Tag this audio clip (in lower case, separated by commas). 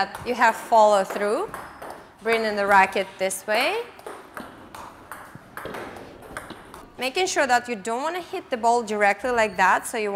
playing table tennis